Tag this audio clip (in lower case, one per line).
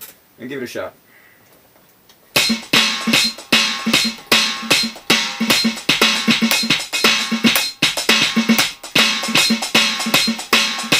music
drum machine
inside a small room
drum kit
musical instrument
drum
speech